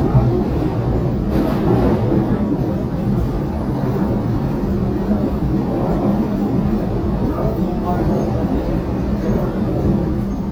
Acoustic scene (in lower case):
subway train